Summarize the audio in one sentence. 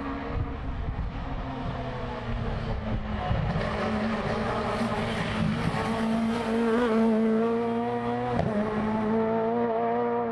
A small engine vehicle going in the distance